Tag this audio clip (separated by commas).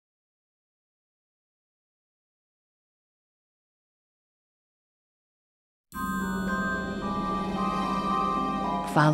Speech, Music